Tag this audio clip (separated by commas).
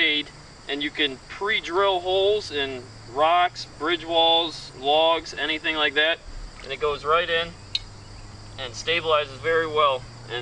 Animal, Speech